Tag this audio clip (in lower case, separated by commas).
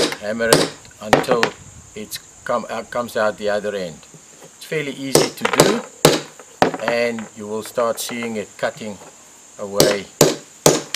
speech